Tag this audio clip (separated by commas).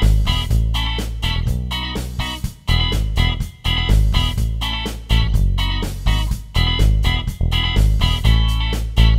Music